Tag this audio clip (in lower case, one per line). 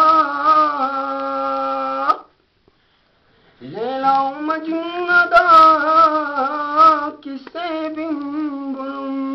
inside a small room